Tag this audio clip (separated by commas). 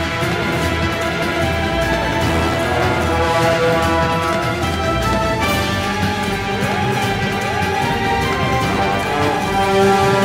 Scary music, Background music, Music